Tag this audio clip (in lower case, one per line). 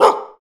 dog
domestic animals
animal
bark